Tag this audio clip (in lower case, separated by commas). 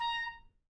music, wind instrument, musical instrument